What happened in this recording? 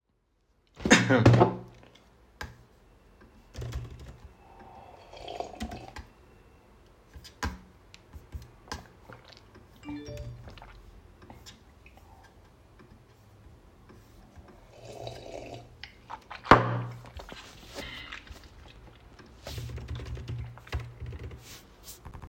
I was typing on the keyboard, when I received several notifications on the phone and slurping the water from the glass. One time I put the glass of water on the table very drastically